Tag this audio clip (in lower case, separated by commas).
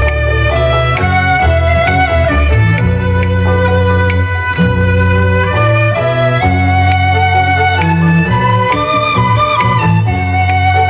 woodwind instrument